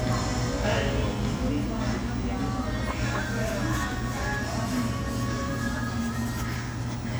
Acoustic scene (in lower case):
cafe